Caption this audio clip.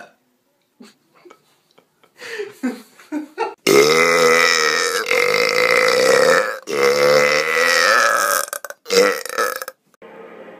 Long burp with person laughing in background